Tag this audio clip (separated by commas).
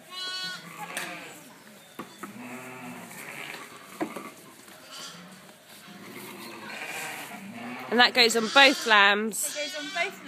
Speech, Goat, livestock, Sheep, Animal